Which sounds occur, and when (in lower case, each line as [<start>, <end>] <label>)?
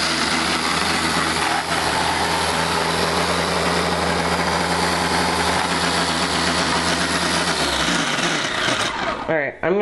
[0.00, 9.21] blender
[9.23, 9.52] woman speaking
[9.61, 9.81] woman speaking